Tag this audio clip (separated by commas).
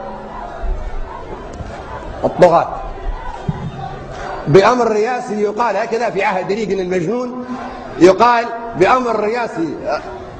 Speech, Narration, man speaking